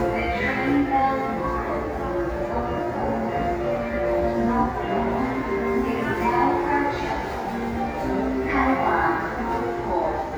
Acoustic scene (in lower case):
subway station